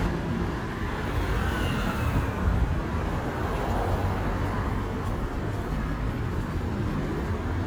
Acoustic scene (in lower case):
street